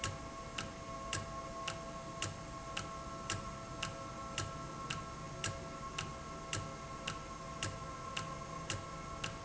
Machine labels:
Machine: valve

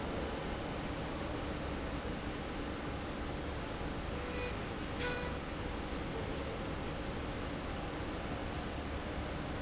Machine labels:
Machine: slide rail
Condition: normal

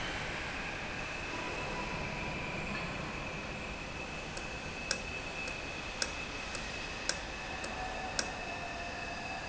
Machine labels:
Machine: valve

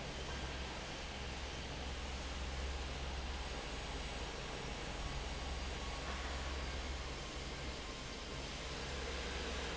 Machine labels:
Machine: fan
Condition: normal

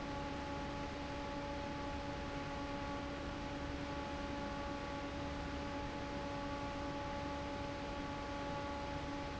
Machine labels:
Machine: fan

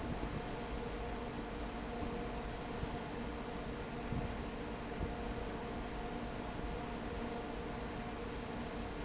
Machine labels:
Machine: fan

